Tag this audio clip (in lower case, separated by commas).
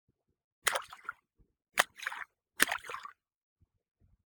splash, liquid